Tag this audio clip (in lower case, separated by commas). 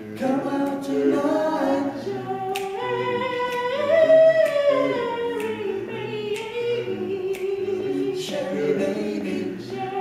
music, male singing